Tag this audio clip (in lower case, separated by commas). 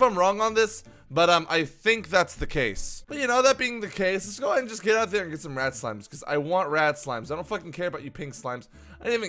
speech